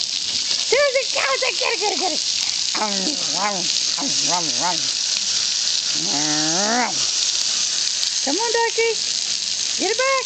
Water is running fast and an adult female is speaking